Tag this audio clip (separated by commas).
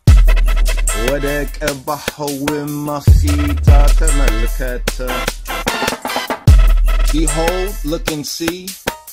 Music, Hip hop music, Speech